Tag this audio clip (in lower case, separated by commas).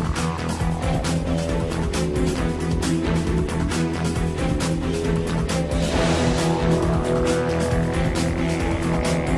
music, video game music, soundtrack music, background music